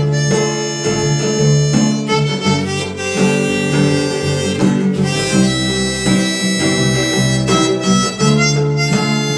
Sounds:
harmonica
music

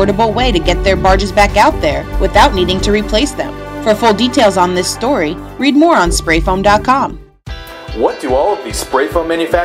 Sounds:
speech
music

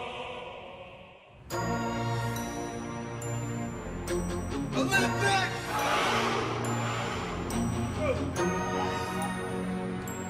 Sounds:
speech
music

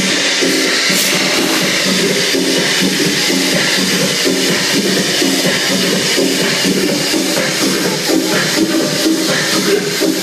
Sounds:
dance music
music
speech

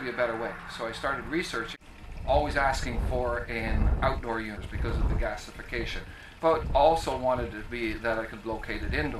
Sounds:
speech

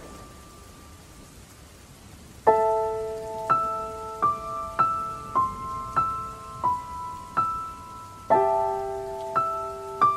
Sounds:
rain on surface
music

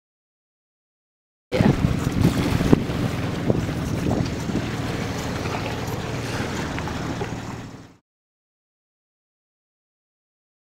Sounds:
outside, rural or natural

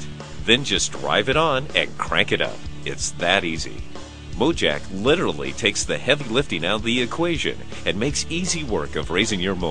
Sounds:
music
speech

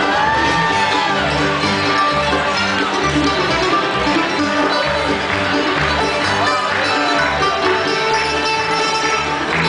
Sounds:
music

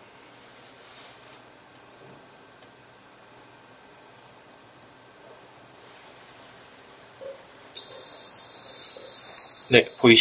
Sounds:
smoke detector beeping

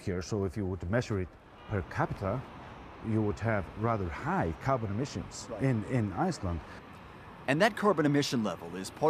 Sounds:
speech

